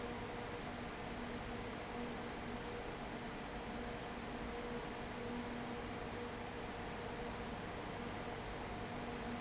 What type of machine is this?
fan